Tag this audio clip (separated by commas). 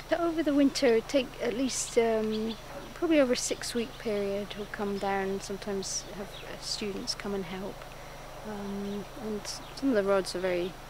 Speech